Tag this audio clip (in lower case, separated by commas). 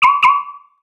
motor vehicle (road), vehicle, car